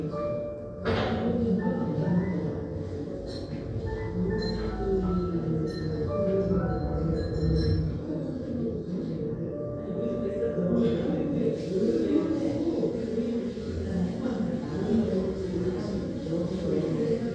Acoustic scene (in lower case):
crowded indoor space